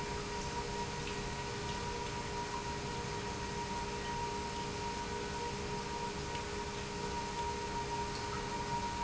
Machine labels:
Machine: pump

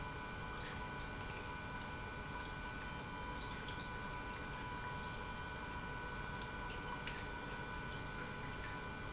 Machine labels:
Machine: pump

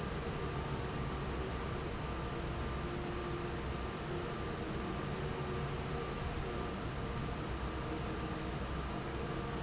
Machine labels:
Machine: fan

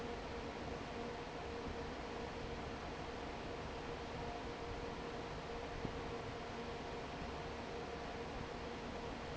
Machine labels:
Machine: fan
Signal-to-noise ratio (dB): 6 dB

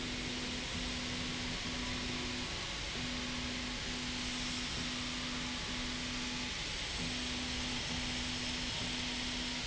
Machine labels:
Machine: slide rail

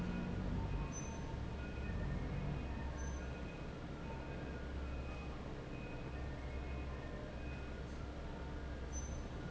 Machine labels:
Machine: fan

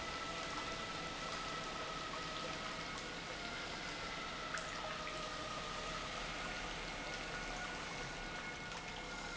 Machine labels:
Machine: pump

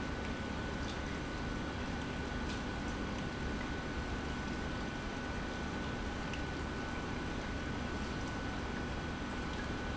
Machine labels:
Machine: pump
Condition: normal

